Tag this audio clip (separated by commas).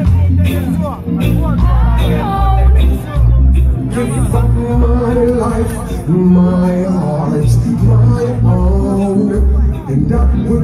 Music, Speech